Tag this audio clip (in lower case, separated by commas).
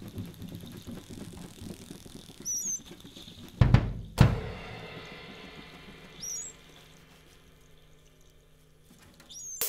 music, percussion, musical instrument, drum, cymbal